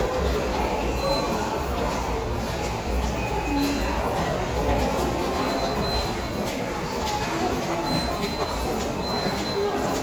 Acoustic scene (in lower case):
subway station